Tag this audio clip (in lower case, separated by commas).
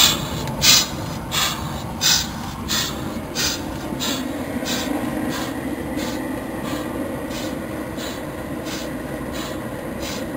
boat, speedboat